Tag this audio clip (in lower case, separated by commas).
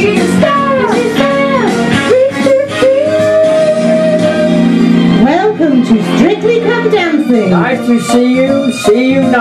music, blues, speech